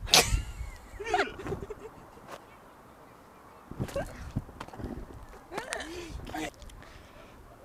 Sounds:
laughter, human voice

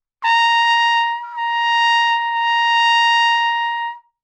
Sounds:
brass instrument, musical instrument, trumpet, music

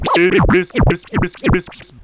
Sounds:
scratching (performance technique), music, musical instrument

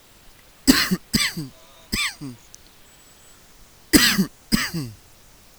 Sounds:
cough, respiratory sounds

